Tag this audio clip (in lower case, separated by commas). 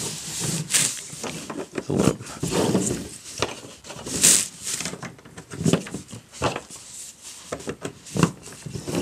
inside a small room